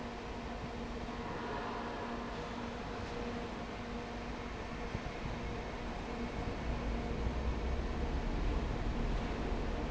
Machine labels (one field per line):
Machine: fan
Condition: abnormal